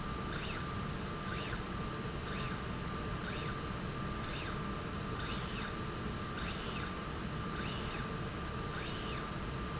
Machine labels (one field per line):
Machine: slide rail